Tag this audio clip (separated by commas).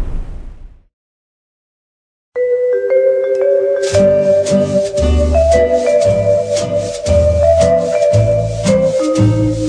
Vibraphone, Music